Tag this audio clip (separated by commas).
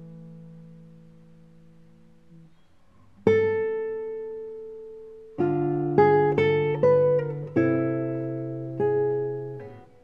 playing acoustic guitar, Musical instrument, Classical music, Guitar, Plucked string instrument, Music, Acoustic guitar